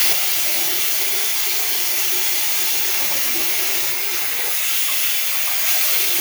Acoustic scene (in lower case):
restroom